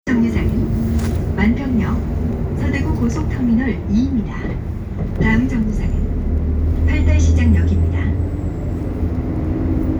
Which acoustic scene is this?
bus